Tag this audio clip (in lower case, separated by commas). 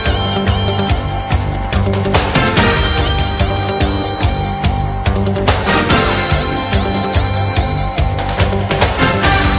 music